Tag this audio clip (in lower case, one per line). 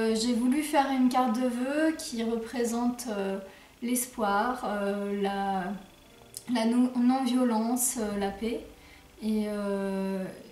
speech